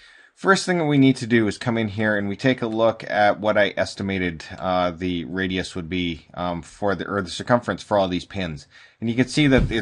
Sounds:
Speech

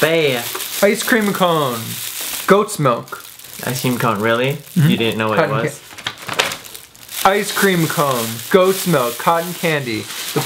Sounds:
Speech

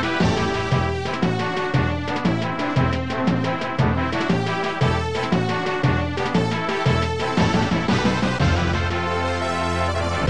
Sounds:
Video game music, New-age music, Music, Background music, Rhythm and blues

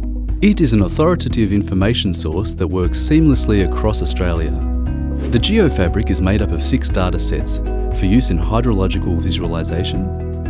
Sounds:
Music, Speech

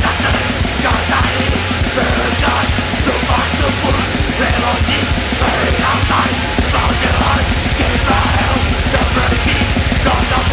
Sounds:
Music

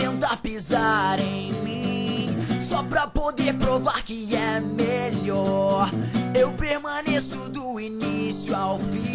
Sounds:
Music

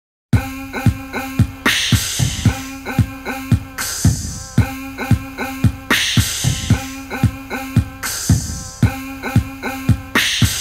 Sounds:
Beatboxing, Music

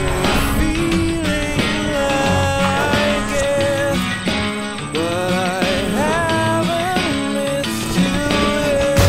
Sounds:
Musical instrument, Plucked string instrument, Acoustic guitar, Guitar, Music

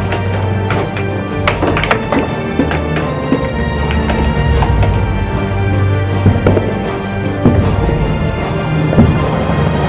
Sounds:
striking pool

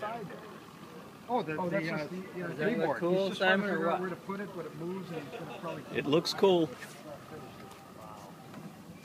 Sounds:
Speech

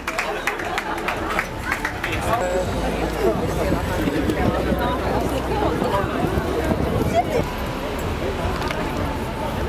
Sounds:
Speech

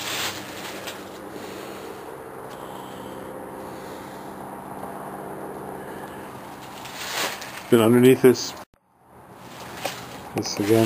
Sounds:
Vehicle, Speech

